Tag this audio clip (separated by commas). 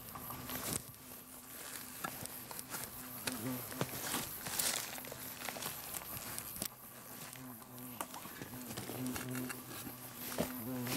wasp